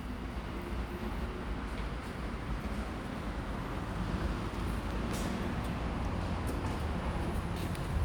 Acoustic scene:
elevator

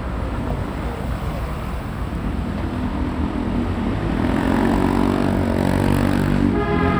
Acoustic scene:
street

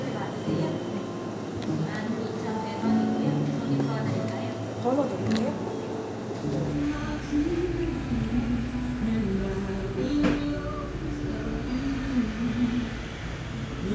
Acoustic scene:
cafe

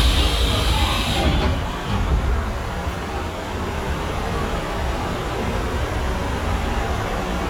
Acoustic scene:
subway train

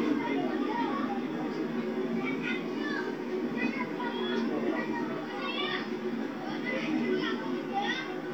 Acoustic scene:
park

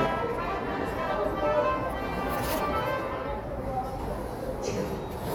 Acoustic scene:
subway station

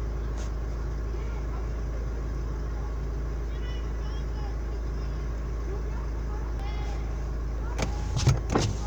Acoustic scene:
car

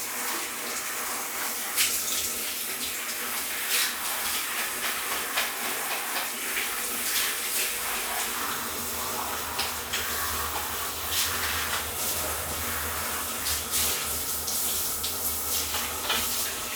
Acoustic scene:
restroom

